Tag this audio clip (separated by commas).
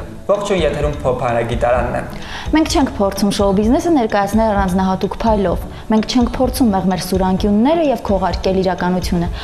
Speech, Music